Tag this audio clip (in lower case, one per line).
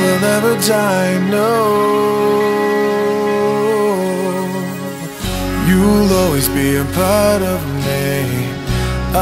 background music
music